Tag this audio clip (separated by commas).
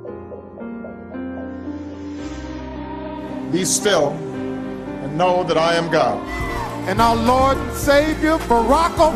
Speech, Music